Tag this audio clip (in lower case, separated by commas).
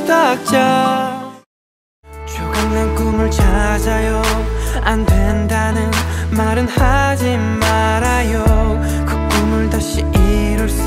male singing, music